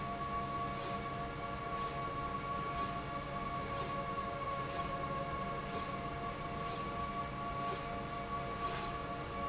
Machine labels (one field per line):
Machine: slide rail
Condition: normal